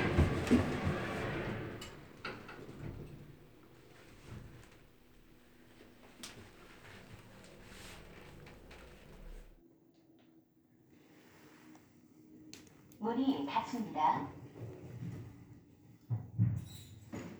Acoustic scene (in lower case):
elevator